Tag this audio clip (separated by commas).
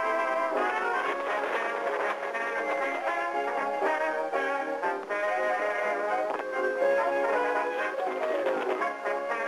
Music